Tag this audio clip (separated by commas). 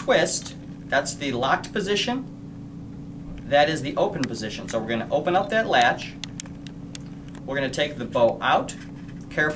Speech